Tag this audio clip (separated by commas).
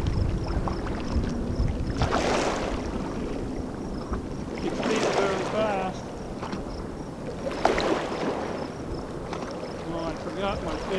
kayak, Water vehicle, Vehicle, Speech